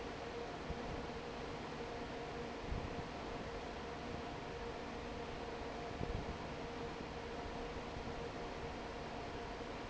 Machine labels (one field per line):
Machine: fan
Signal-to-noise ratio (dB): 6 dB